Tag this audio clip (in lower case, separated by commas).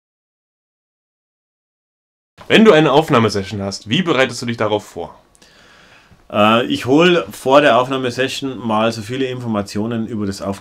speech